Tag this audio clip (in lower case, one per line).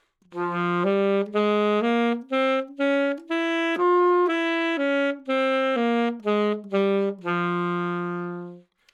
music
wind instrument
musical instrument